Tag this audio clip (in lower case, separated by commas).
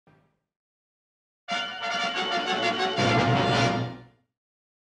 television, music